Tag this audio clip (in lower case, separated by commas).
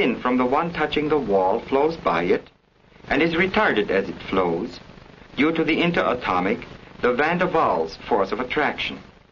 speech